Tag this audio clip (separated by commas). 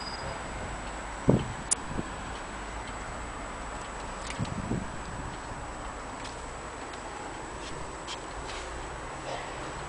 Tick-tock